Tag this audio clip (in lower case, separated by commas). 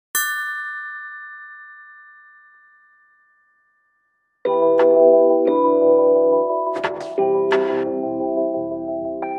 clang, ding